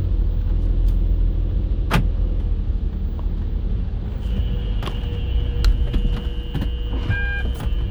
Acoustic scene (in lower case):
car